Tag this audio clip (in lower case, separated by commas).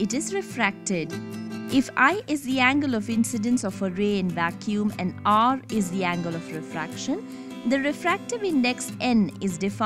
music, speech